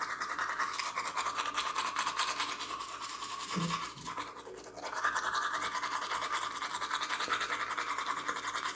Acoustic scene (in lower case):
restroom